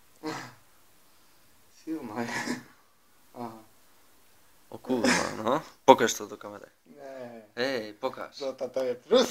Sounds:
inside a small room, Speech

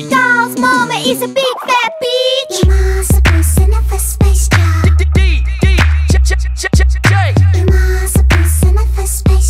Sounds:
Music

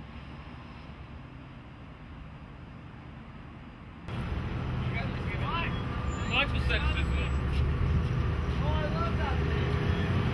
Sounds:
Speech

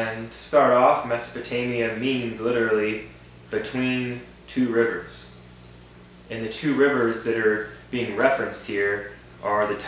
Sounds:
Speech

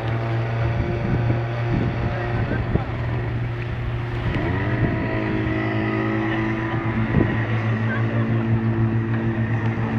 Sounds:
Wind, Wind noise (microphone), Motorboat, Water vehicle

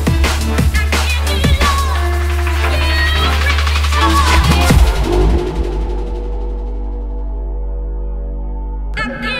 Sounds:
Electronic music, Drum and bass, Music

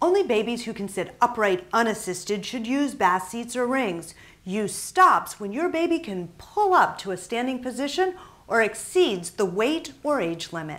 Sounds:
Speech

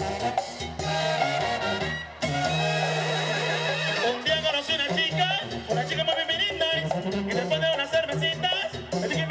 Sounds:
Music

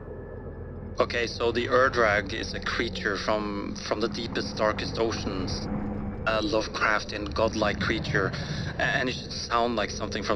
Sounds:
Speech

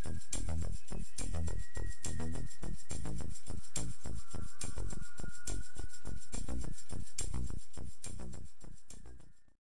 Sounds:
Music

